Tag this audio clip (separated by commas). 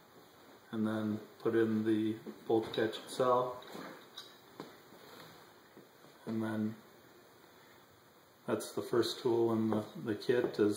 Speech